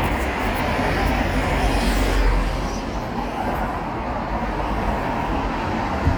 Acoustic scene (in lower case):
street